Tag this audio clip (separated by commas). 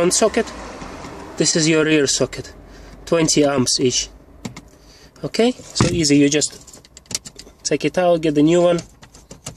Vehicle